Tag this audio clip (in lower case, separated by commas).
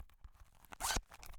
home sounds, zipper (clothing)